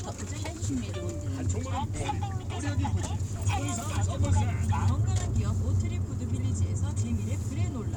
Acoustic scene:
car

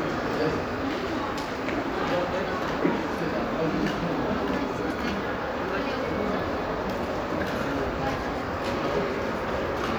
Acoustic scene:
crowded indoor space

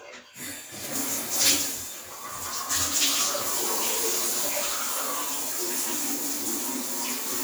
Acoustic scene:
restroom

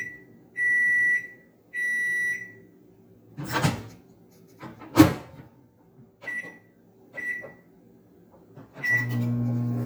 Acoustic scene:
kitchen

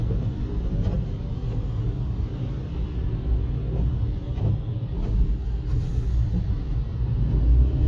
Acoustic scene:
car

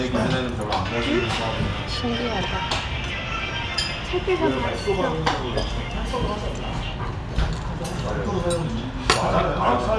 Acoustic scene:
restaurant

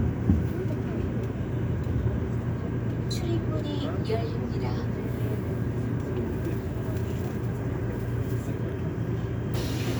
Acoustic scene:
subway train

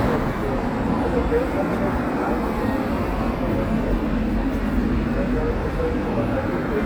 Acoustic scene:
residential area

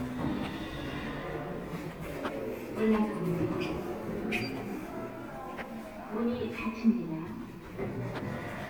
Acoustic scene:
elevator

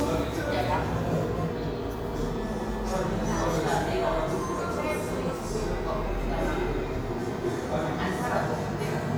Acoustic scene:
cafe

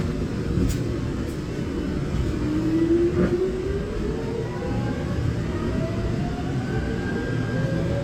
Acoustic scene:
subway train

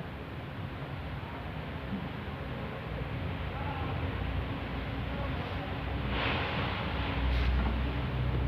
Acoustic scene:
residential area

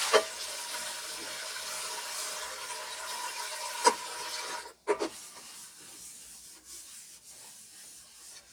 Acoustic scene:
kitchen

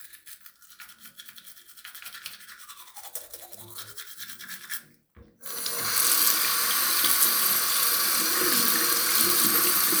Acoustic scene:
restroom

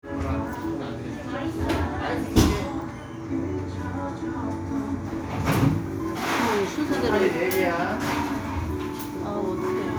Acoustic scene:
cafe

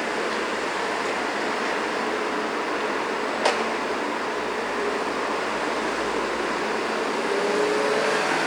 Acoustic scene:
street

